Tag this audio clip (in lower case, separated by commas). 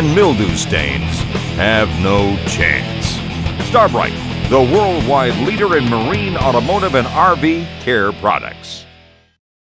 speech, music